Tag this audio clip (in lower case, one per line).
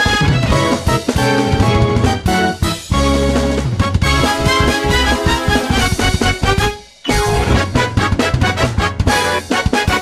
soundtrack music
theme music
music